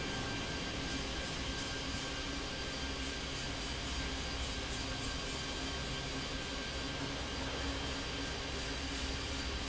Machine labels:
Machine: fan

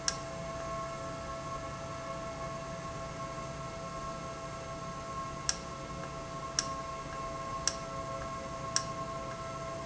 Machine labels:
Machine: valve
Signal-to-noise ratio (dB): -6 dB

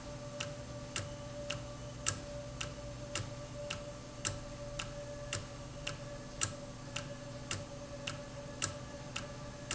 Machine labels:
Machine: valve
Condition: normal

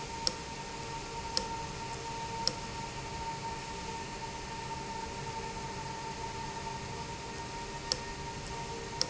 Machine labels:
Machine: valve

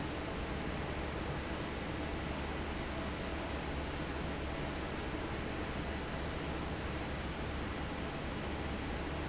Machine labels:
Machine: fan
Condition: normal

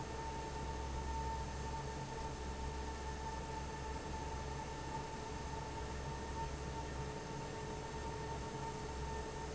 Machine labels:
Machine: fan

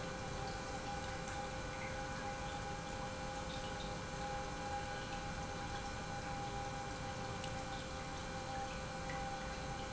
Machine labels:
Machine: pump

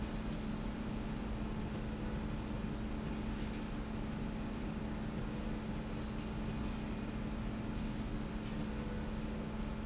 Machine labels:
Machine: slide rail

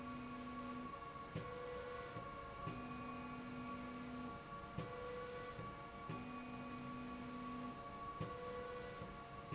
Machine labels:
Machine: slide rail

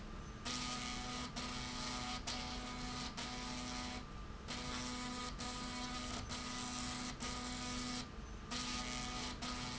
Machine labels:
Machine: slide rail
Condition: abnormal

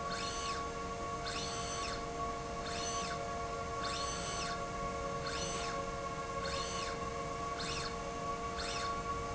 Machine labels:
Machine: slide rail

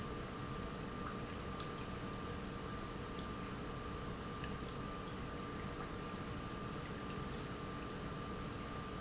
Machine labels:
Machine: pump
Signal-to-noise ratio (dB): 0 dB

